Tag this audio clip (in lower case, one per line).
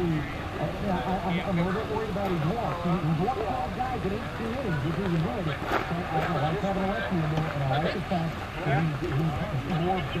speech